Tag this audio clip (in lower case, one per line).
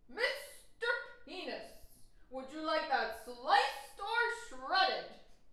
woman speaking
yell
shout
speech
human voice